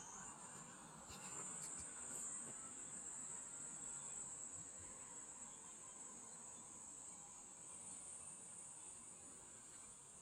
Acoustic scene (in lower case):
park